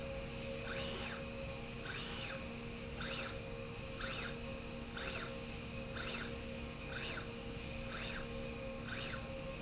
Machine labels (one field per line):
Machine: slide rail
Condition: normal